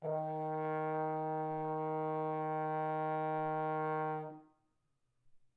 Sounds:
musical instrument, brass instrument, music

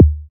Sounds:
musical instrument, music, drum, percussion, bass drum

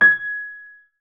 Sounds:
musical instrument, piano, keyboard (musical), music

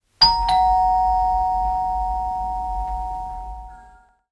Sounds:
home sounds, door, doorbell, alarm

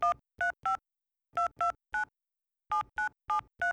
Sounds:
telephone, alarm

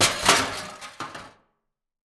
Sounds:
crushing

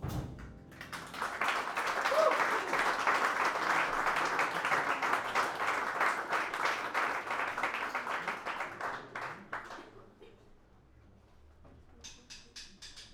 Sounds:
applause, human group actions

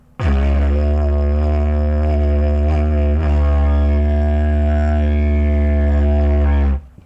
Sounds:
musical instrument, music

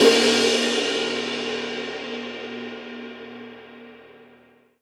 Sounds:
cymbal, musical instrument, crash cymbal, music, percussion

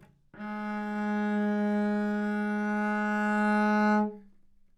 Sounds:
musical instrument, bowed string instrument, music

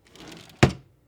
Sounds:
home sounds, drawer open or close

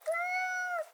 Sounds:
cat, domestic animals, animal, meow

